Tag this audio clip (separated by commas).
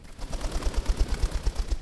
Bird, Wild animals, Animal